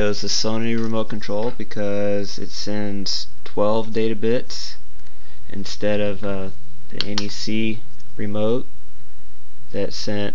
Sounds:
Speech

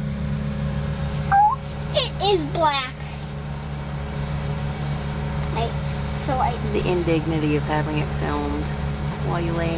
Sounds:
Speech

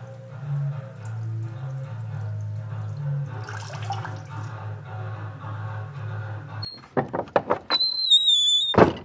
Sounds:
Guitar, Music, Musical instrument, inside a small room

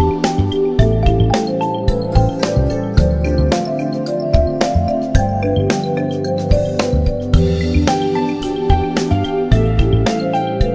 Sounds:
Music

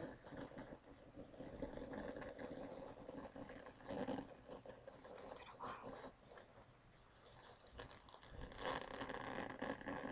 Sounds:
Speech

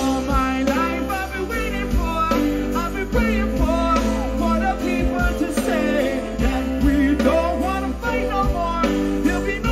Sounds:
Funk, Music

